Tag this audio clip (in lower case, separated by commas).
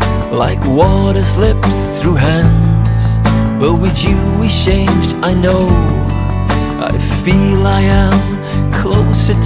music